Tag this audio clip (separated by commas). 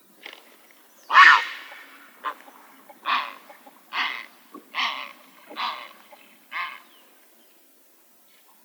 Bird, Animal, Wild animals